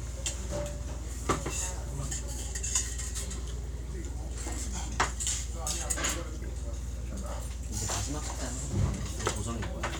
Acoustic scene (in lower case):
restaurant